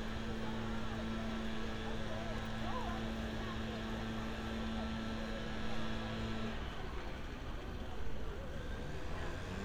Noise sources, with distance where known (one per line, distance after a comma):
unidentified powered saw